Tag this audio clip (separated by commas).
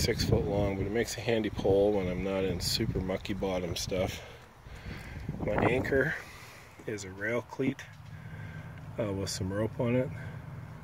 Speech, outside, urban or man-made